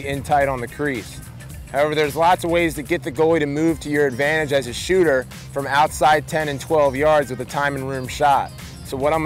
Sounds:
Speech, Music

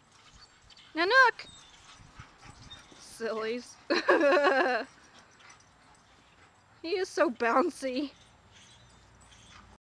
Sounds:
Speech

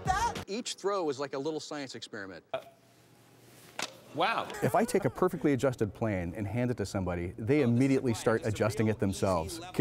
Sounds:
Speech

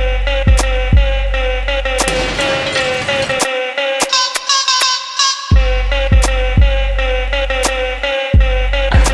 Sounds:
Music

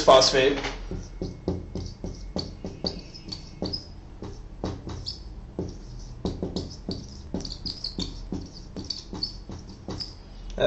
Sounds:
Speech, inside a small room

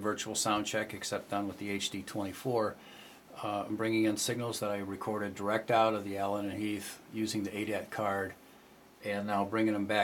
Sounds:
Speech

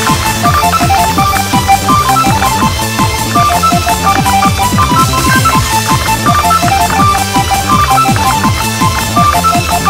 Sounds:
Telephone, Music

